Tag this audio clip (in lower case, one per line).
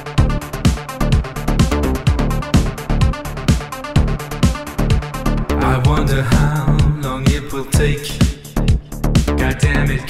electronica
music